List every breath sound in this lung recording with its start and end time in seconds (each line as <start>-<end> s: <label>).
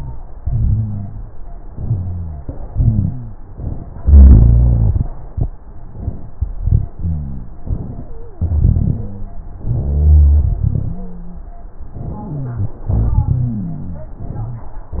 0.34-1.31 s: inhalation
0.34-1.31 s: rhonchi
1.71-2.43 s: exhalation
1.71-2.43 s: rhonchi
2.69-3.42 s: inhalation
2.69-3.42 s: rhonchi
4.02-5.09 s: exhalation
4.02-5.09 s: rhonchi
6.60-6.89 s: inhalation
6.98-7.61 s: exhalation
6.98-7.61 s: rhonchi
7.65-8.06 s: inhalation
8.03-8.45 s: wheeze
8.44-9.43 s: exhalation
8.44-9.43 s: rhonchi
9.62-10.51 s: inhalation
9.62-10.51 s: rhonchi
10.70-11.48 s: wheeze
11.97-12.75 s: inhalation
11.97-12.75 s: wheeze
12.90-14.12 s: exhalation
12.90-14.12 s: rhonchi